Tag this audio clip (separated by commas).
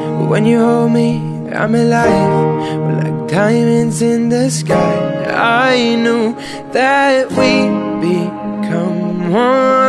Music